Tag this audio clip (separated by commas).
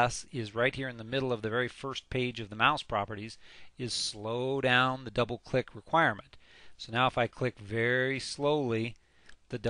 Speech